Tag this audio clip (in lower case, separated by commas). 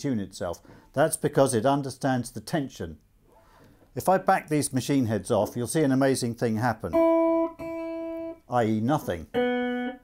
speech